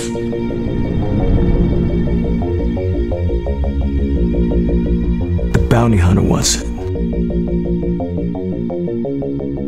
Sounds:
speech
music

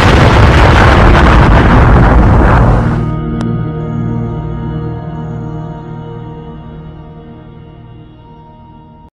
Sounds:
music

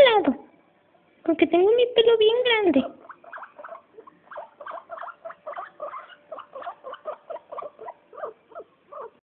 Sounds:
animal
domestic animals
dog
speech

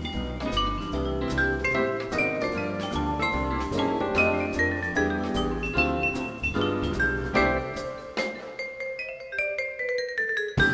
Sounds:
playing vibraphone

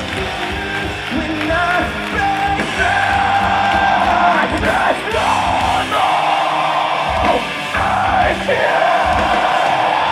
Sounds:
music

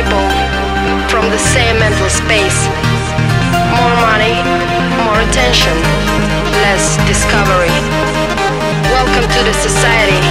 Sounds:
soundtrack music
music
speech

